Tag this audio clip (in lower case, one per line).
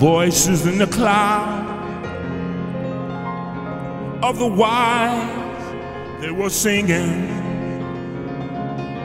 music